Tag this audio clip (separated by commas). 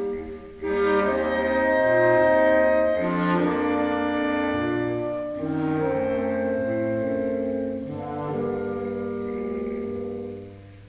Clarinet, Classical music, Musical instrument, Music